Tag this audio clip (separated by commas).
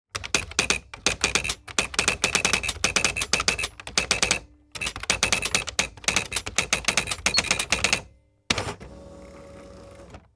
Typewriter, Domestic sounds, Typing